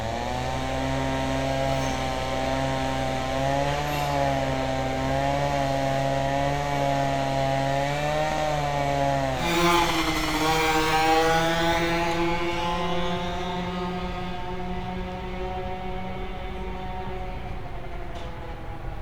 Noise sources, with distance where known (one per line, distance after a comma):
small-sounding engine, near